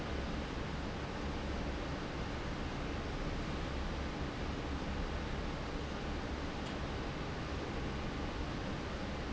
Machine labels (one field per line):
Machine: fan